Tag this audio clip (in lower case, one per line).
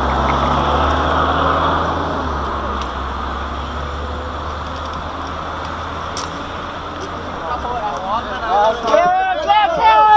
car
speech